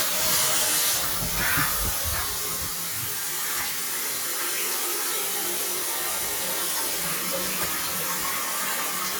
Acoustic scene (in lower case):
restroom